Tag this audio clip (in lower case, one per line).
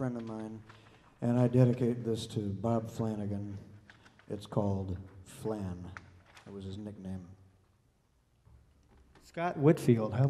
speech